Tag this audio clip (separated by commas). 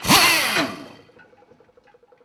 Tools, Power tool, Drill